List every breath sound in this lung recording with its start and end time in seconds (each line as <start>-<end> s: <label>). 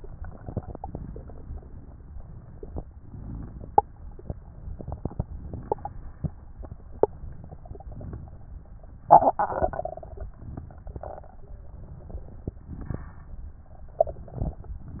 0.00-0.94 s: exhalation
0.00-0.94 s: crackles
2.91-3.84 s: inhalation
4.72-6.13 s: exhalation
4.72-6.13 s: crackles
7.58-8.52 s: inhalation
7.58-8.52 s: crackles
9.03-10.27 s: exhalation
9.03-10.27 s: crackles
10.33-11.34 s: inhalation
10.33-11.34 s: crackles
11.96-13.07 s: exhalation
11.96-13.07 s: crackles
13.97-14.78 s: inhalation
13.97-14.78 s: crackles